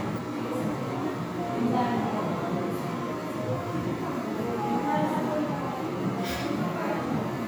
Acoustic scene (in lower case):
crowded indoor space